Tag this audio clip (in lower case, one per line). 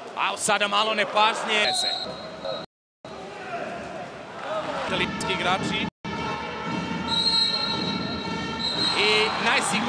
music
speech